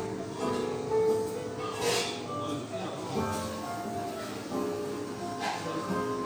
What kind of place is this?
cafe